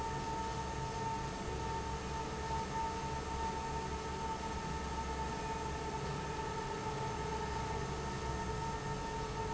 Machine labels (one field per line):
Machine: fan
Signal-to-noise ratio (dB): -6 dB